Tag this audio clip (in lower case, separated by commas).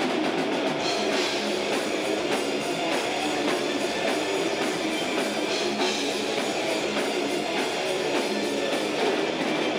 music